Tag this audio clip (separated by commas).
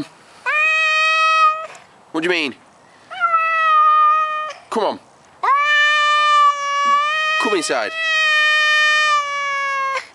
cat caterwauling